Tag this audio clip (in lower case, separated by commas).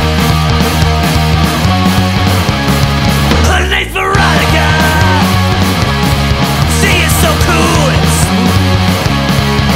music